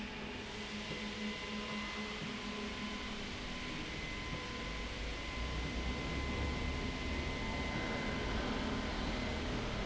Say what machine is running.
slide rail